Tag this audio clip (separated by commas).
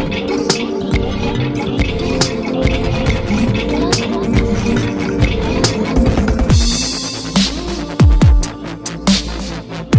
Music, Dubstep, Electronic music, Electronica